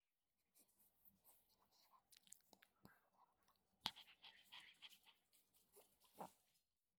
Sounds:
pets, Animal, Dog

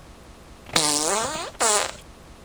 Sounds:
Fart

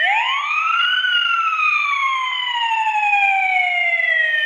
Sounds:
Alarm, Siren

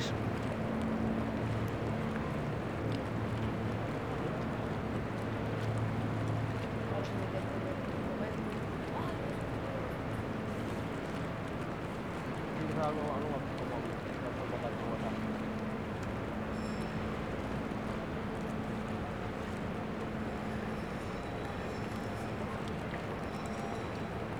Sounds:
Water vehicle, Vehicle, Water, Stream

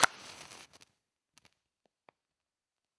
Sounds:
Fire

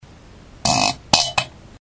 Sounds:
Fart

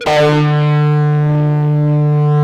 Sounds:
Electric guitar, Guitar, Music, Plucked string instrument, Musical instrument

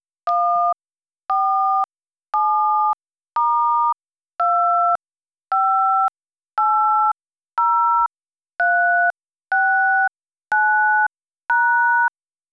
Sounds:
Alarm, Telephone

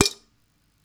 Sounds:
dishes, pots and pans, Domestic sounds

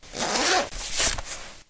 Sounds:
home sounds, Zipper (clothing)

